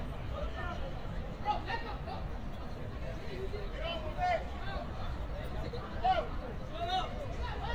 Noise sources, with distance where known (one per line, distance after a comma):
person or small group shouting, near